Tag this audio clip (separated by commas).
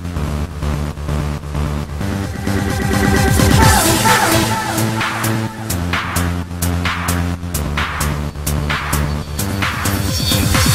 Techno